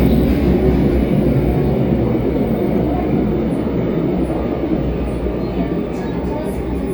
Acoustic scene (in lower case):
subway train